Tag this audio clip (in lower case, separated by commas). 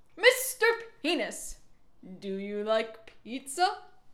human voice, yell, shout